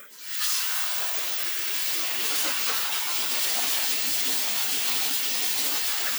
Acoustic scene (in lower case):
kitchen